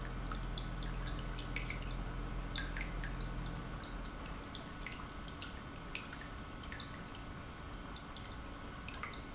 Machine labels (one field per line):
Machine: pump